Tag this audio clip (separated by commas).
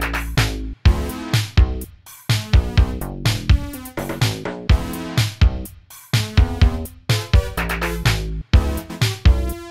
Music